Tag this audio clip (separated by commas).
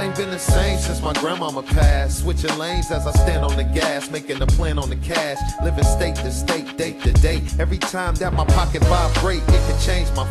Music